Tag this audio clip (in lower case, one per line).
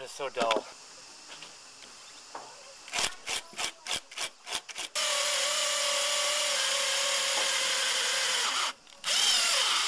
power tool
filing (rasp)
rub
tools
drill
wood